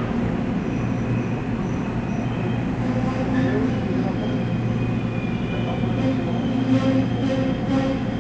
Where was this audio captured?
on a subway train